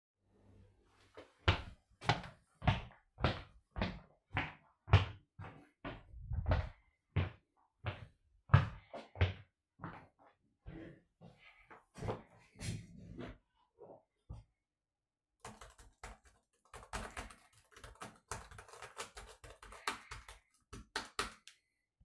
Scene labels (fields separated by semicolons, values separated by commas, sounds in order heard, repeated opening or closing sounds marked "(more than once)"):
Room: office; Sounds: footsteps, keyboard typing